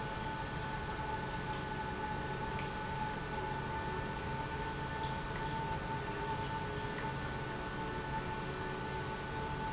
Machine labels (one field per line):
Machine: pump